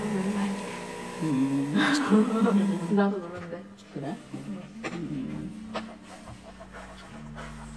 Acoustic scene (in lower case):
crowded indoor space